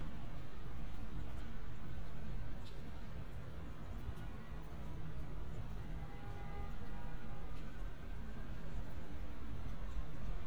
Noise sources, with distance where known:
car horn, far

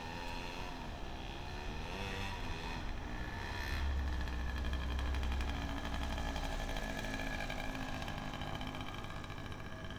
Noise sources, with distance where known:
unidentified powered saw, near

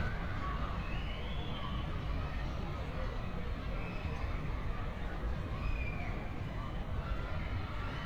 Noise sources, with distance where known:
large crowd

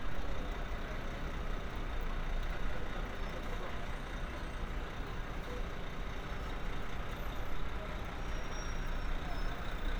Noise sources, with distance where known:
engine of unclear size, near

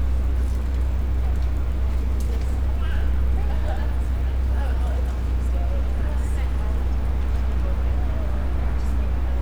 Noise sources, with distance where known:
person or small group talking

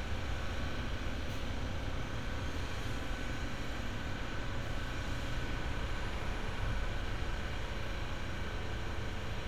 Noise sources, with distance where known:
engine of unclear size

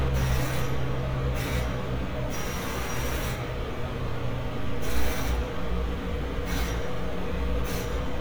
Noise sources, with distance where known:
pile driver, near

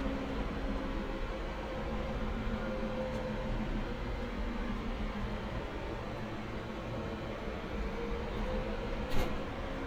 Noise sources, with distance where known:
engine of unclear size, far

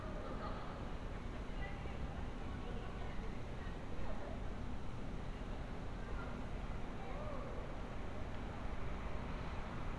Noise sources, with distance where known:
person or small group talking, far

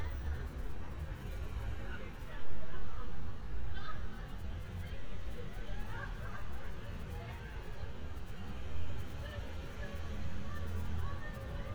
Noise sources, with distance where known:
person or small group talking, far

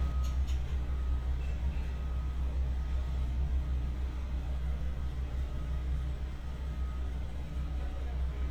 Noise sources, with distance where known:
unidentified alert signal, near

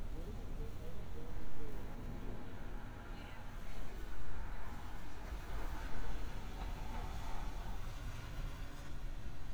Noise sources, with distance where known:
engine of unclear size, far; person or small group talking, far

